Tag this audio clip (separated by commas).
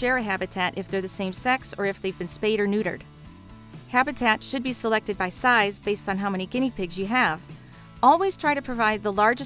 Music, Speech